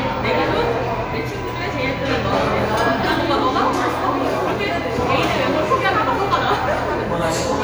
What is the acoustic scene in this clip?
crowded indoor space